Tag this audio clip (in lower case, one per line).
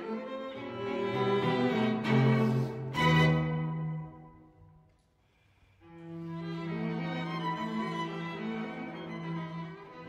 music
musical instrument
fiddle